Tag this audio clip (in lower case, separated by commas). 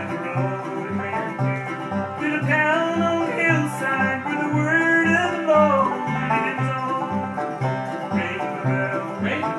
music